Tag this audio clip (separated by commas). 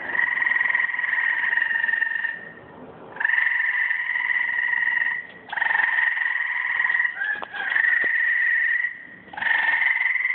Animal, Bird